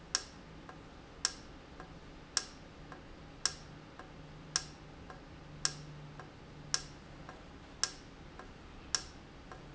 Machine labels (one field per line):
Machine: valve